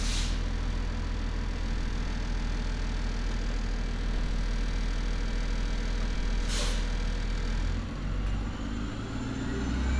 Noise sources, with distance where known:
large-sounding engine, near

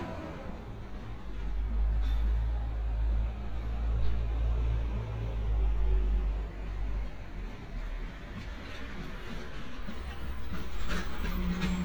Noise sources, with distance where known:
large-sounding engine, near

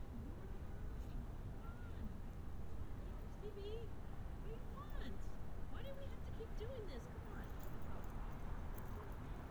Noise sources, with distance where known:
person or small group talking, near

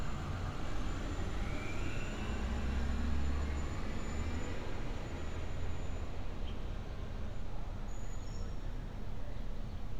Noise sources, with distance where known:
engine of unclear size, far

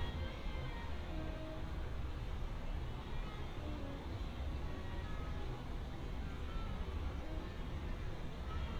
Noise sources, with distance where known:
music from a fixed source, far

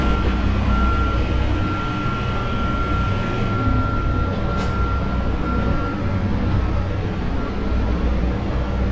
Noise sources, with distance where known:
large-sounding engine, near
reverse beeper, near

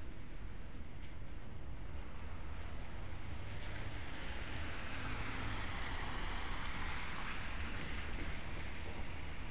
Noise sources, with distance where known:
background noise

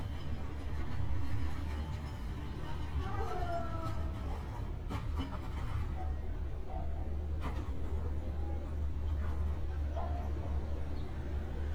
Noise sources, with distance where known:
dog barking or whining

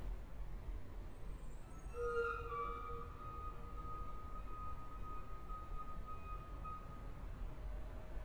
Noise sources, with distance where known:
reverse beeper

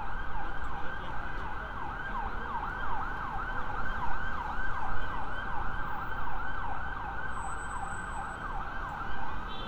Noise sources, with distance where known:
siren

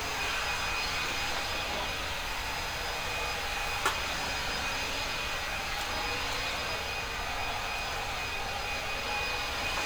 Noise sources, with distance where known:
unidentified powered saw

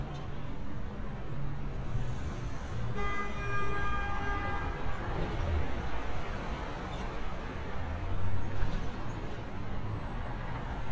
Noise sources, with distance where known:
car horn, far

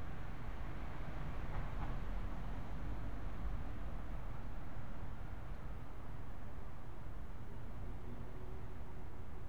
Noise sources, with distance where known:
background noise

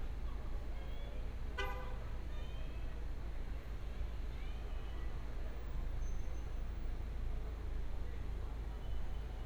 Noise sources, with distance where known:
car horn

